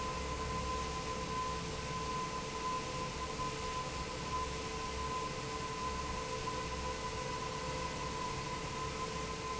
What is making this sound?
fan